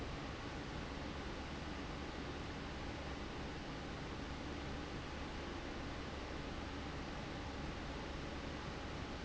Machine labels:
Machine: fan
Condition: abnormal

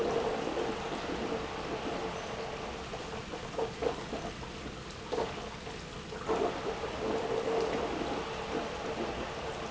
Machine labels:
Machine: pump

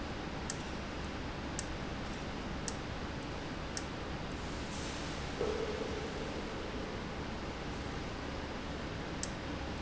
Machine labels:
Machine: valve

